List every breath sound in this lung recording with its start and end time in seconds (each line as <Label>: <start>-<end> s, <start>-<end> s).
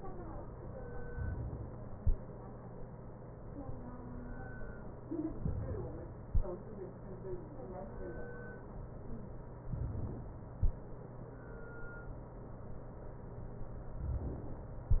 Inhalation: 5.45-6.32 s, 9.70-10.56 s